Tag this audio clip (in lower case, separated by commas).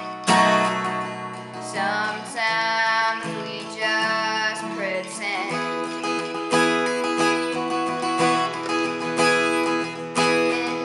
music